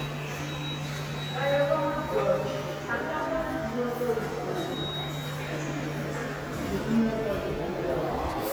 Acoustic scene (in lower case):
subway station